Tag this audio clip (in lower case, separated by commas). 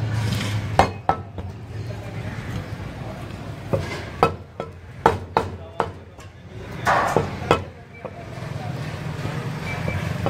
chopping food